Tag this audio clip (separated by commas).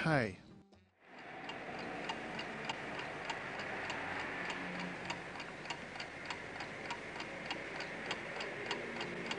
Speech